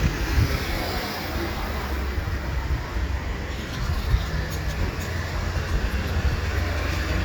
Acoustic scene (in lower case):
street